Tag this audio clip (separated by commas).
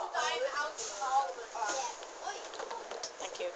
Bus, Vehicle, Motor vehicle (road)